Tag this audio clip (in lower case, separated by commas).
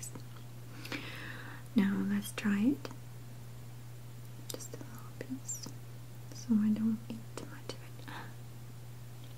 people whispering